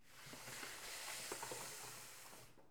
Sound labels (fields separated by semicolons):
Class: furniture moving; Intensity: low